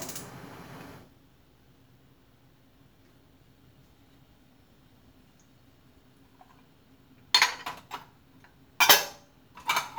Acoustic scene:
kitchen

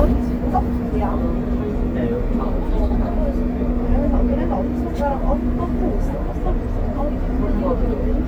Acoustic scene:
bus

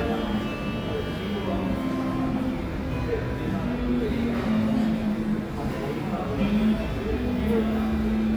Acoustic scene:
cafe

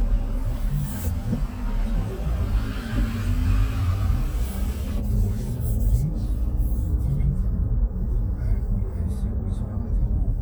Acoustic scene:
car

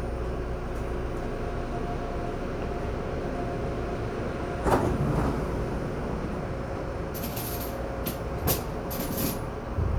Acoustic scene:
subway train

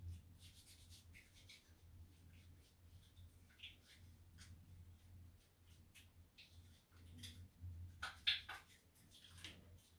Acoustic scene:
restroom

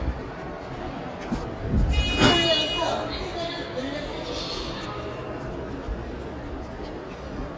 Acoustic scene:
subway station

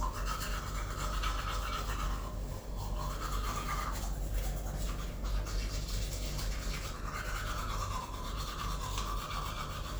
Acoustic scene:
restroom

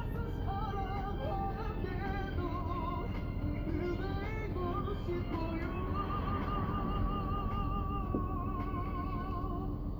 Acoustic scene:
car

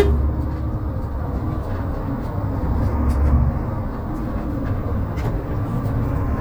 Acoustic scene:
bus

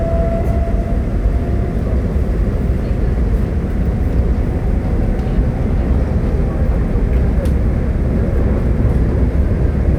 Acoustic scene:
subway train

